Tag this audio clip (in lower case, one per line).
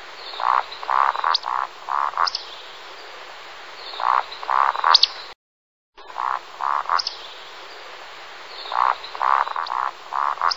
wood thrush calling